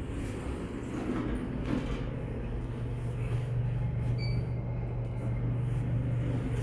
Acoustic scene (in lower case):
elevator